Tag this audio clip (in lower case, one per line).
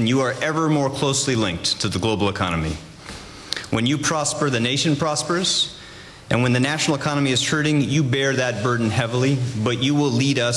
monologue
speech
man speaking